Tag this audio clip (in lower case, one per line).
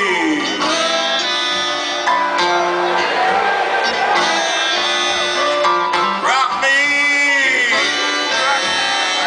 music